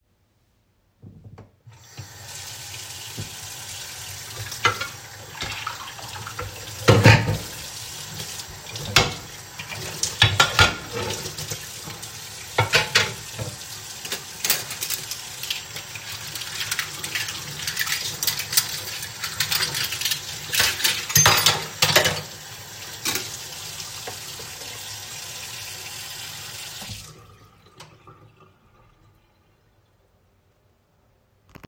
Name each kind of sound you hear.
running water, cutlery and dishes